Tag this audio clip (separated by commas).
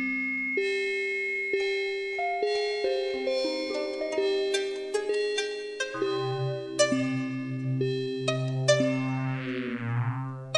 Glockenspiel, Music